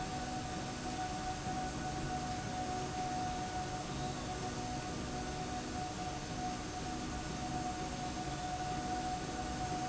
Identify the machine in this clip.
slide rail